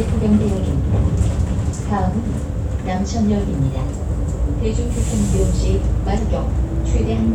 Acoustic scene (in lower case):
bus